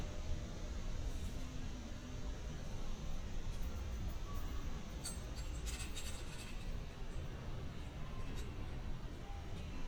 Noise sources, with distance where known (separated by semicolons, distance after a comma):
non-machinery impact